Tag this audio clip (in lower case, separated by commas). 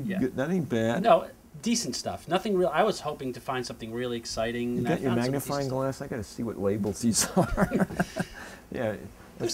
speech